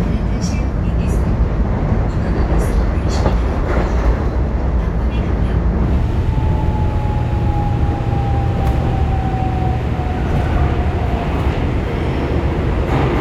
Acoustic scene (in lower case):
subway train